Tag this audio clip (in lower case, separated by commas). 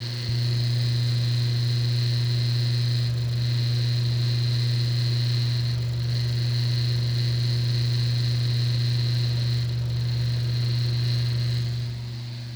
mechanisms, mechanical fan